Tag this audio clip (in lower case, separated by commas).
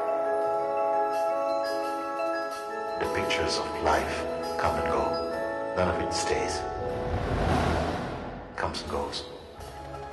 music, speech